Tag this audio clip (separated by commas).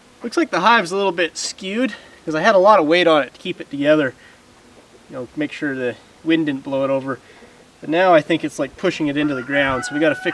Speech